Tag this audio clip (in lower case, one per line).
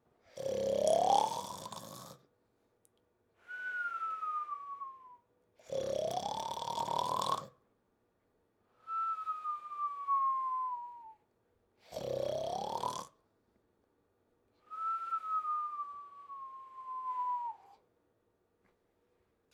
respiratory sounds
breathing